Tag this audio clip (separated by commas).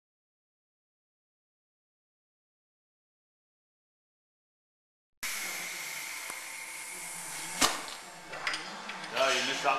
Speech